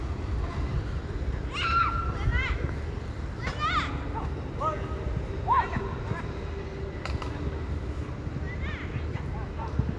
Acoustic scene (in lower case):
park